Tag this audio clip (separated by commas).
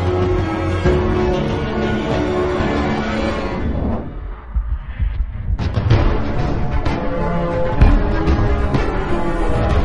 Music